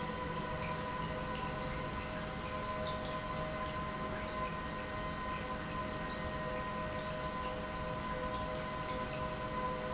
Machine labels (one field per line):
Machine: pump